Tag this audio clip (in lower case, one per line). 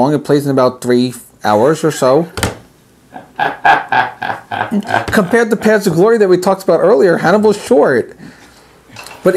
speech